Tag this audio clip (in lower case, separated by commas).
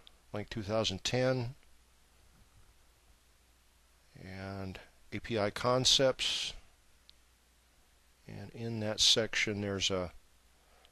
speech